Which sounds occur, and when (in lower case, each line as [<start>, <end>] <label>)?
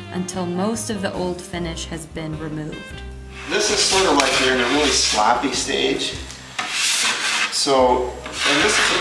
[0.00, 9.00] music
[0.11, 2.79] woman speaking
[8.31, 9.00] rub
[8.36, 9.00] male speech